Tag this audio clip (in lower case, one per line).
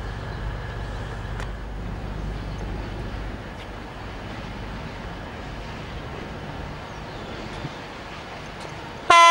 train horning
train horn